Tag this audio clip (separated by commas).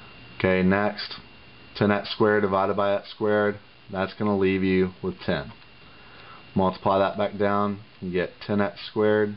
Speech, Writing, inside a small room